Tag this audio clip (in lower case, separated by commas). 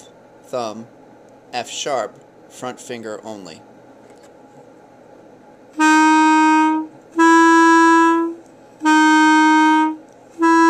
playing clarinet